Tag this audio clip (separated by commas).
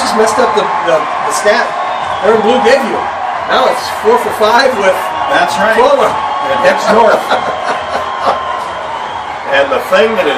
Speech